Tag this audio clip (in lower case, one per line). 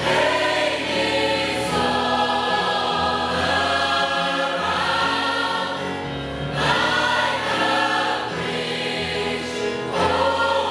music
choir